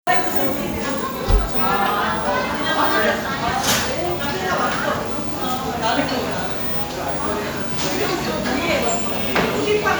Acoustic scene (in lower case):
cafe